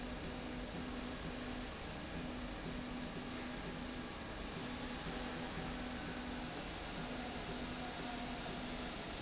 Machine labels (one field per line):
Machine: slide rail